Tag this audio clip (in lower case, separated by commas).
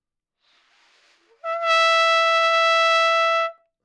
trumpet, brass instrument, musical instrument, music